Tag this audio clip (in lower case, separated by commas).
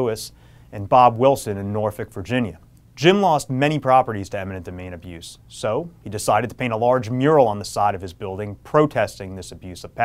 man speaking, speech